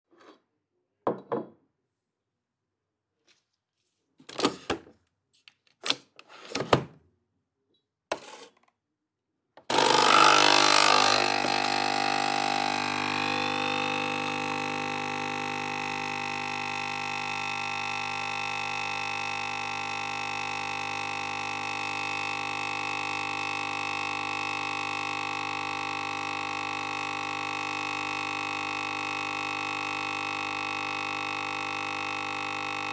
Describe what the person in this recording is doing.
I walked into the kitchen and headed straight to the counter. I grabbed my mug and hit the button to start the coffee machine. It hummed quietly as it warmed up and began brewing.